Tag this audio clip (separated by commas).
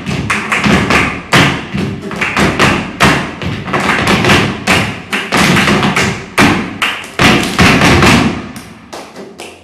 Thump